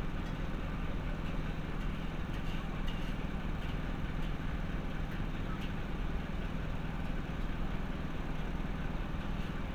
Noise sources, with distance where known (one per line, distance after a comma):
medium-sounding engine
unidentified impact machinery